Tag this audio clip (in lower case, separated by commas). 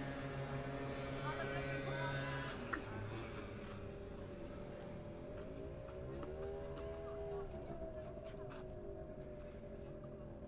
speech